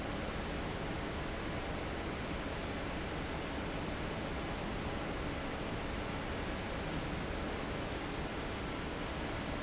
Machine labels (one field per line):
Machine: fan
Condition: abnormal